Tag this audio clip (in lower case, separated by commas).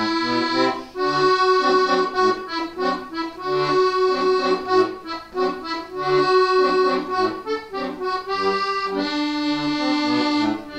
accordion, playing accordion, musical instrument, music